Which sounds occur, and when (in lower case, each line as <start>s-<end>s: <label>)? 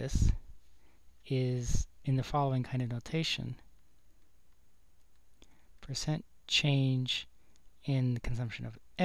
0.0s-0.4s: man speaking
0.0s-9.0s: mechanisms
0.7s-1.0s: breathing
1.2s-1.3s: tick
1.2s-1.8s: man speaking
2.0s-3.7s: man speaking
3.8s-4.0s: tick
4.2s-4.3s: tick
4.5s-4.6s: tick
5.0s-5.2s: tick
5.4s-5.5s: tick
5.5s-5.7s: breathing
5.8s-6.2s: man speaking
6.5s-7.3s: man speaking
7.3s-7.5s: breathing
7.5s-7.6s: tick
7.8s-8.8s: man speaking
9.0s-9.0s: man speaking